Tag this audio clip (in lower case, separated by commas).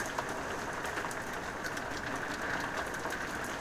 water, rain